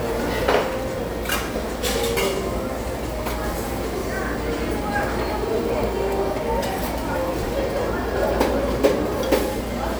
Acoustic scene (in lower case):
restaurant